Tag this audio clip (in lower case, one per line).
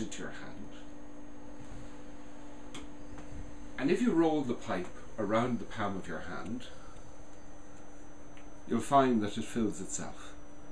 speech